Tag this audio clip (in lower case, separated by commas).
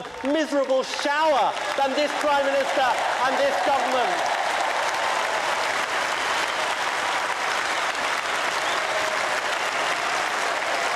male speech, speech